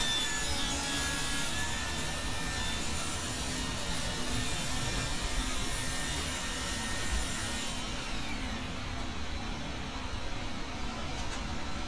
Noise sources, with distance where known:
small or medium rotating saw, near

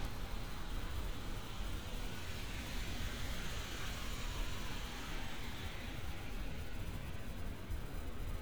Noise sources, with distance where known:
siren, far

